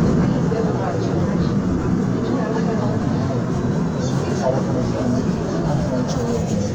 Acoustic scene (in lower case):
subway train